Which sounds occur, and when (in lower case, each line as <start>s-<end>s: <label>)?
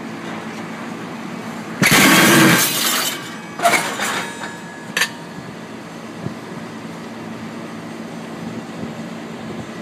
0.0s-9.8s: train
1.8s-3.2s: generic impact sounds
3.6s-4.5s: generic impact sounds
4.9s-5.2s: generic impact sounds